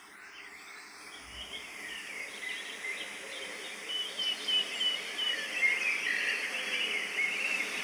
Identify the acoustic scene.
park